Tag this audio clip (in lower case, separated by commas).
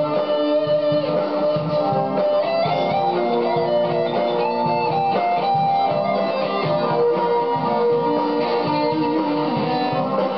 guitar, musical instrument, strum, plucked string instrument, acoustic guitar, music